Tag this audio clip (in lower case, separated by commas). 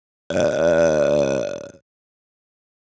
eructation